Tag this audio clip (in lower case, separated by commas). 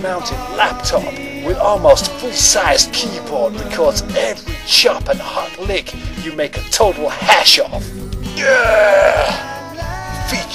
plucked string instrument, speech, music, musical instrument, guitar, strum